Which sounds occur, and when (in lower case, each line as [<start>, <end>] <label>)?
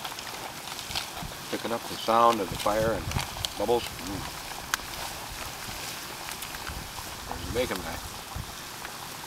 [0.00, 9.25] rustle
[7.27, 7.99] man speaking
[8.79, 8.89] generic impact sounds